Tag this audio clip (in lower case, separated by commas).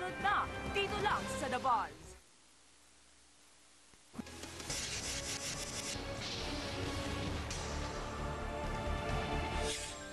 speech, music